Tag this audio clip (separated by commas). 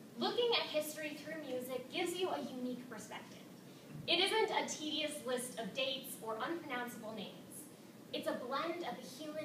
Speech